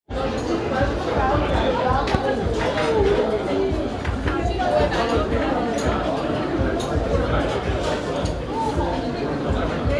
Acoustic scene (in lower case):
restaurant